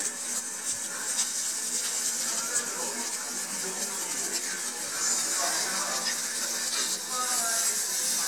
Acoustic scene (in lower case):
restaurant